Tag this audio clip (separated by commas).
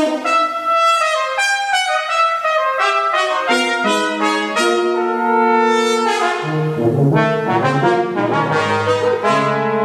Trumpet, Trombone, French horn, Brass instrument, playing french horn